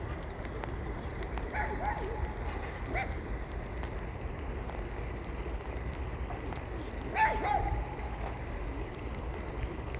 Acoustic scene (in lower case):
park